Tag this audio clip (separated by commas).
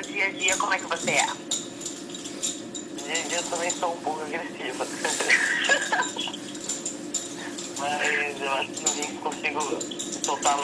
inside a large room or hall, Speech